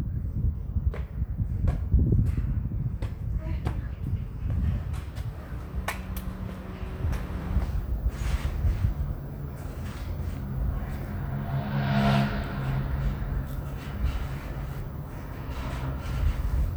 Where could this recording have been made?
in a residential area